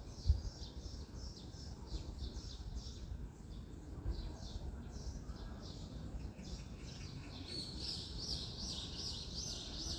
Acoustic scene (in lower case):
residential area